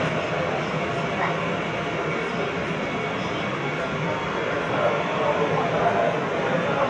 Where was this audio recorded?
on a subway train